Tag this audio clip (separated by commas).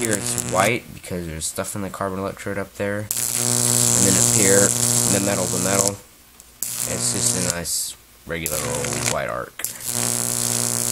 Mains hum, Hum